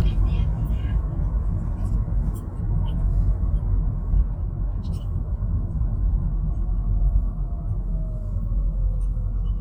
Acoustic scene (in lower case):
car